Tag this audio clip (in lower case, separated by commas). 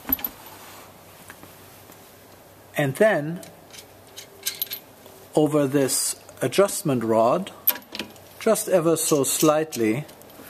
inside a small room, speech